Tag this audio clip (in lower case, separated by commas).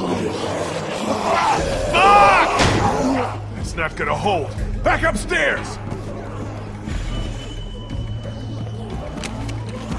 speech, music